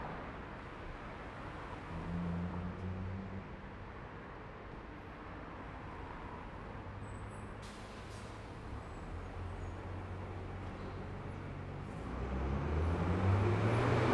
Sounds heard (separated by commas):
bus compressor, bus brakes, bus, bus engine idling, car, car wheels rolling, bus engine accelerating